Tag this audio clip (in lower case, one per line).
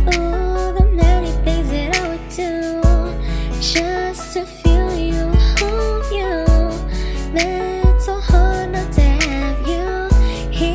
music